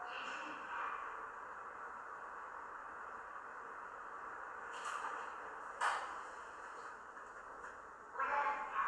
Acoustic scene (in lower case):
elevator